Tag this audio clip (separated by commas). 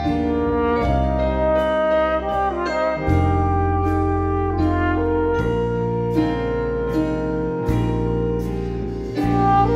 Music, Gospel music